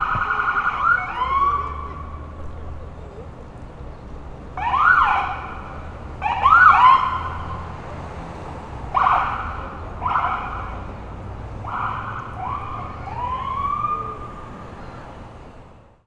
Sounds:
motor vehicle (road)
siren
vehicle
alarm

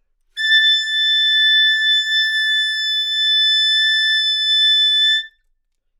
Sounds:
musical instrument
woodwind instrument
music

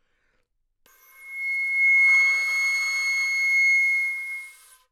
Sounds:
woodwind instrument
music
musical instrument

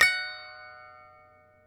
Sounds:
musical instrument
music
harp

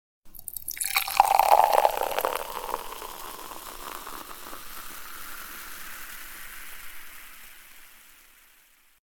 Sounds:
fill (with liquid)
liquid

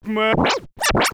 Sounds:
music
musical instrument
scratching (performance technique)

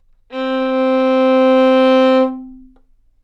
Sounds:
bowed string instrument
musical instrument
music

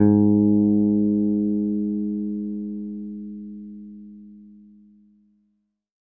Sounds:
music
guitar
musical instrument
plucked string instrument
bass guitar

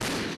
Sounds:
explosion

